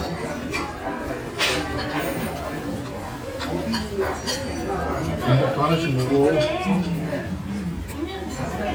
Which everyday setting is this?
restaurant